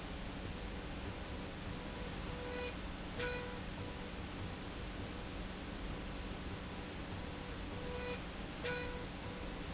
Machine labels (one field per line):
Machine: slide rail